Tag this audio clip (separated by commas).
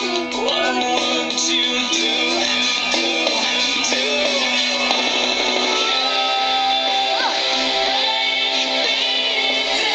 Music, Child singing, Male singing